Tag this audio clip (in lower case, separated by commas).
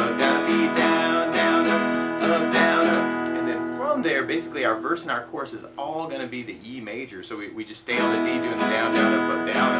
strum, speech, music